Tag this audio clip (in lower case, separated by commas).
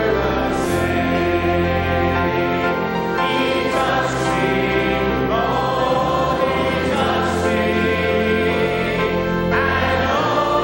choir, male singing